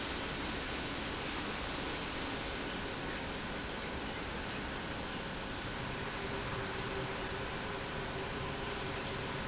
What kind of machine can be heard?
pump